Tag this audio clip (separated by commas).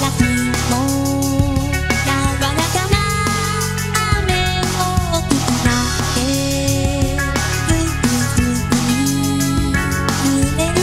Music, Pop music